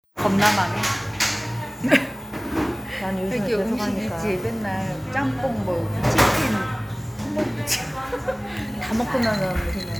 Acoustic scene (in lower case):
cafe